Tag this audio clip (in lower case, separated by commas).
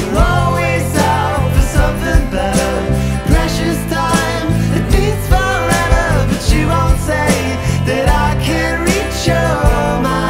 music